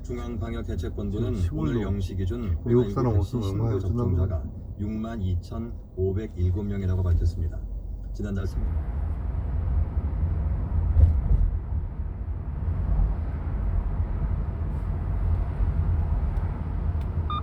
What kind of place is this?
car